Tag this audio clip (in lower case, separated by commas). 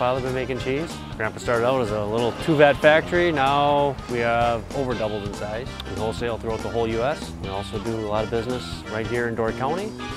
music, speech